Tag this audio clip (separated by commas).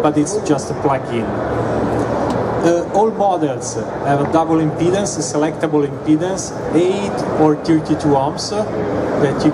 Speech